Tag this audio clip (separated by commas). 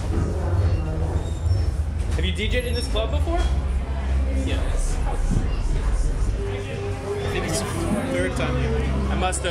Speech, Music